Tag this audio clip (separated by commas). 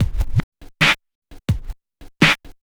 Musical instrument, Scratching (performance technique), Music